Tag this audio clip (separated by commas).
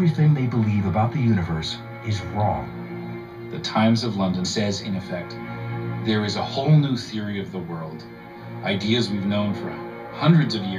Music, Speech